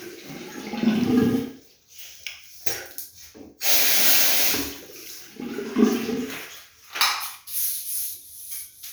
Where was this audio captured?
in a restroom